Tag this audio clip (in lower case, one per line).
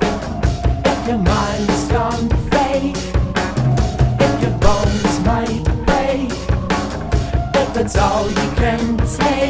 music